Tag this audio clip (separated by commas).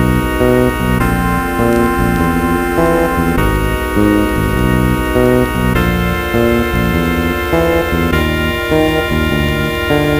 Scary music, Music